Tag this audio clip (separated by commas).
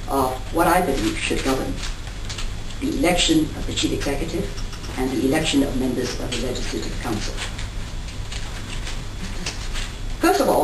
Speech